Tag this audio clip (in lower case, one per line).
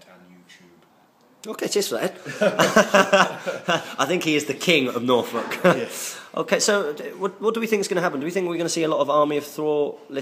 inside a small room
speech